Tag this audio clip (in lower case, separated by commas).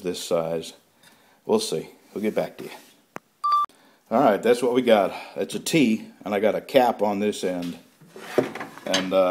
inside a small room, speech